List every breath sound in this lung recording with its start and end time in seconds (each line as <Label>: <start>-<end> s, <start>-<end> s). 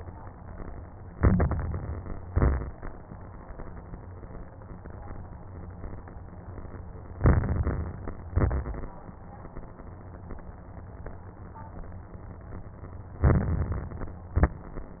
Inhalation: 1.06-2.20 s, 7.14-8.28 s, 13.22-14.36 s
Exhalation: 2.22-2.87 s, 8.36-9.01 s, 14.35-14.99 s
Crackles: 1.06-2.20 s, 2.22-2.87 s, 7.14-8.28 s, 13.22-14.36 s, 14.40-14.99 s